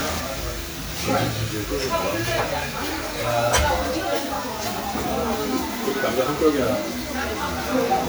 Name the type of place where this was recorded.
restaurant